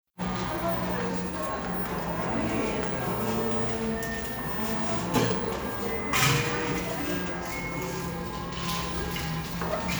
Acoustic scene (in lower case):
cafe